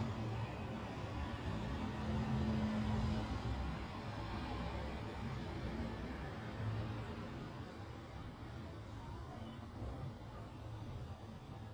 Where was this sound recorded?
in a residential area